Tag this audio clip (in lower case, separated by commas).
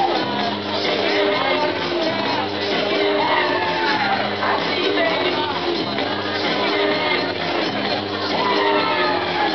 music